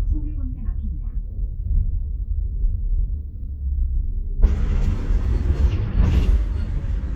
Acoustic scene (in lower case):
bus